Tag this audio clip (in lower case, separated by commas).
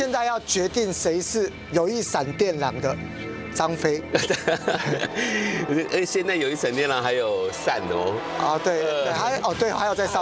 speech, music